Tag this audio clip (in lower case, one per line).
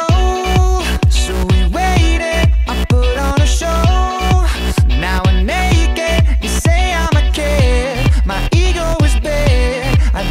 music
electronic dance music